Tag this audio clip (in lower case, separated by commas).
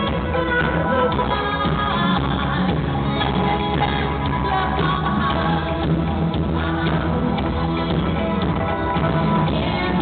music